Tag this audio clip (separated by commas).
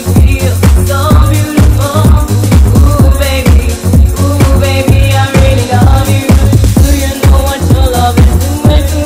Disco, Music